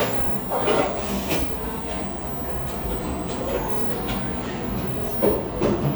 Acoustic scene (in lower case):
cafe